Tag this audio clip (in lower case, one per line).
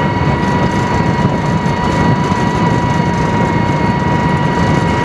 engine